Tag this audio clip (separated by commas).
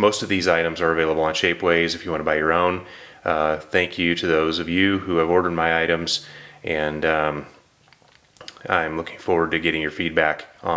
Speech